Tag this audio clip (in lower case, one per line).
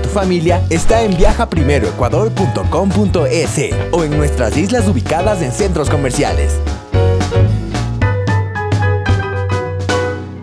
speech
music